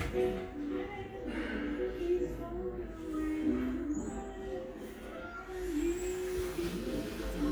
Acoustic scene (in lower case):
crowded indoor space